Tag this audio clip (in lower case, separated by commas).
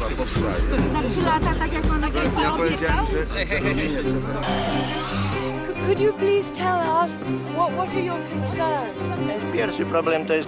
speech, music